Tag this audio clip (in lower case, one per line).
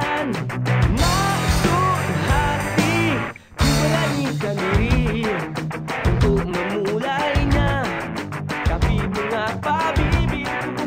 music